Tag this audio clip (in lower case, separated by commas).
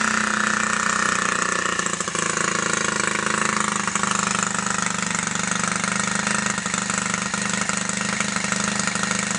vehicle